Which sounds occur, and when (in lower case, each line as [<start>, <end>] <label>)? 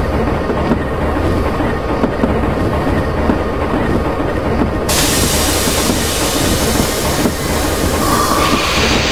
[0.00, 9.11] mechanisms
[0.52, 0.72] generic impact sounds
[1.83, 2.26] generic impact sounds
[3.21, 3.43] generic impact sounds
[4.49, 4.69] generic impact sounds
[4.88, 9.11] steam
[5.06, 5.25] generic impact sounds
[5.67, 5.94] generic impact sounds
[7.15, 7.30] generic impact sounds